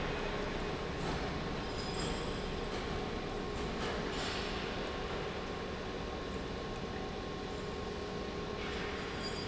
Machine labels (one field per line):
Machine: pump